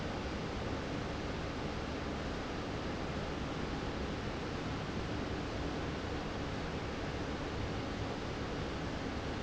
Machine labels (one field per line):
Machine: fan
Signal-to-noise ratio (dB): -6 dB